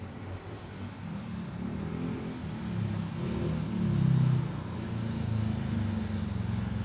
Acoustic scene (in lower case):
residential area